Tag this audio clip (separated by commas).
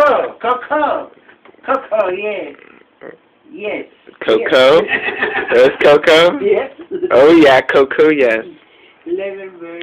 Speech